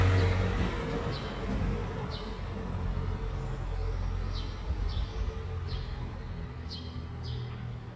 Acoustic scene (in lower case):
residential area